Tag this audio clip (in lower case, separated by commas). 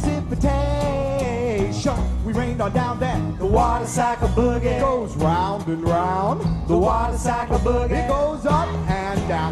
music